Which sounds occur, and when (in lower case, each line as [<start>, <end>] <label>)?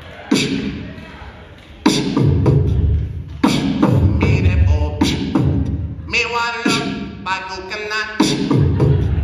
[0.00, 0.36] man speaking
[0.00, 0.36] shout
[0.00, 9.23] crowd
[0.00, 9.23] music
[0.74, 1.39] man speaking
[4.17, 4.93] male singing
[6.11, 7.01] male singing
[7.21, 8.39] male singing
[8.52, 9.23] crowd
[8.71, 9.23] shout